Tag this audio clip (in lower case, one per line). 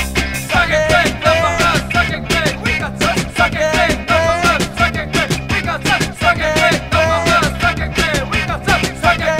music